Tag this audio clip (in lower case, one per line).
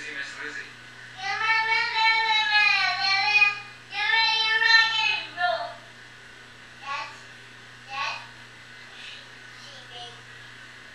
speech